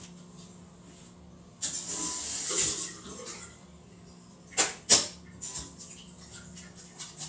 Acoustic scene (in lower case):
restroom